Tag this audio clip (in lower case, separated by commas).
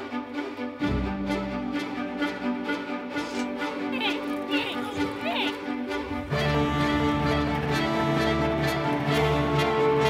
music, speech